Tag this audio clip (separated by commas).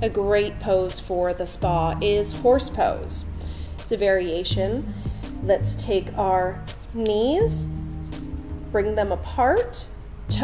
Speech, Music